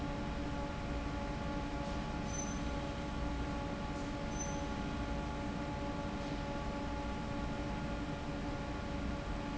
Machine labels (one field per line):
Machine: fan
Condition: normal